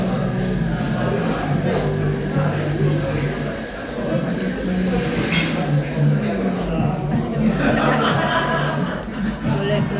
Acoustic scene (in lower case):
crowded indoor space